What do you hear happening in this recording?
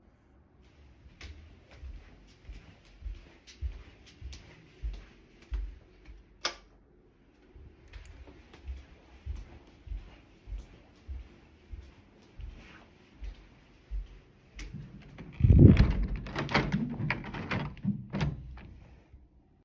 I went to turn the lights on in the morning. Then went to close the window